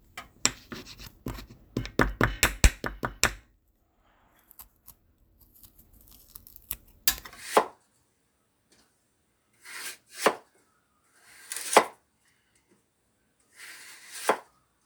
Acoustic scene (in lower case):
kitchen